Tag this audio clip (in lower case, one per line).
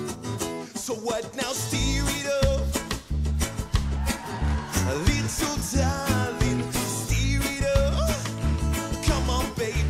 music